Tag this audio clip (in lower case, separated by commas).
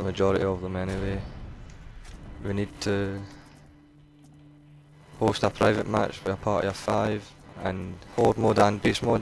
speech